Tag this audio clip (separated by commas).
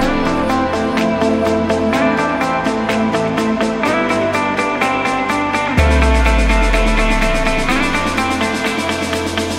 Music